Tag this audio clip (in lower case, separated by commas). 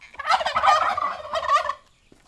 fowl, livestock, animal